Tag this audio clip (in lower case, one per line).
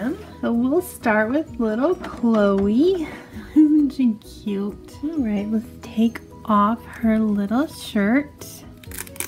music
speech